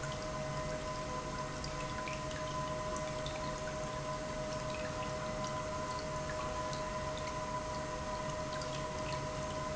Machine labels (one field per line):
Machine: pump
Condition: normal